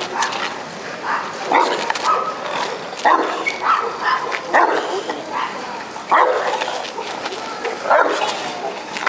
Dogs barking and muffled crinkling